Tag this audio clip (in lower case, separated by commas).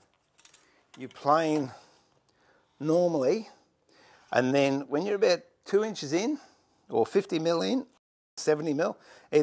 planing timber